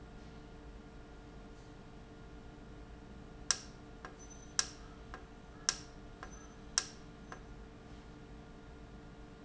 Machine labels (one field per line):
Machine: valve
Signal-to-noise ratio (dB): 6 dB